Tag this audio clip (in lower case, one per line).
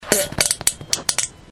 fart